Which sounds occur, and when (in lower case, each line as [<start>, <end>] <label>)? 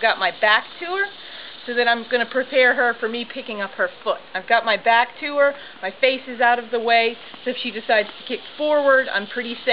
[0.00, 9.72] insect
[0.00, 9.72] wind
[0.01, 1.11] woman speaking
[1.20, 1.55] breathing
[1.64, 3.89] woman speaking
[4.05, 4.18] woman speaking
[4.32, 5.58] woman speaking
[5.59, 5.75] breathing
[5.77, 7.14] woman speaking
[7.32, 7.41] generic impact sounds
[7.39, 8.12] woman speaking
[8.02, 8.13] generic impact sounds
[8.29, 8.41] woman speaking
[8.61, 9.72] woman speaking